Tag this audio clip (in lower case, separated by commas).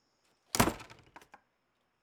domestic sounds, door, slam